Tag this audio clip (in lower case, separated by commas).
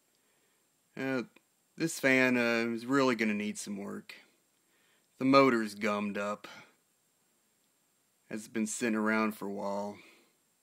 speech